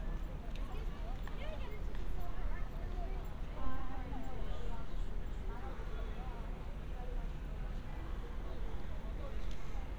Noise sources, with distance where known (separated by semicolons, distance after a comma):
background noise